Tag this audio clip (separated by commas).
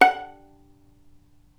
Bowed string instrument, Music, Musical instrument